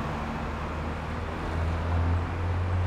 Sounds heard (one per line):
bus
car wheels rolling
car
bus engine accelerating